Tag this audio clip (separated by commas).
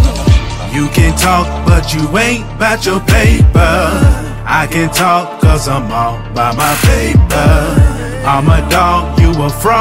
Soundtrack music, Music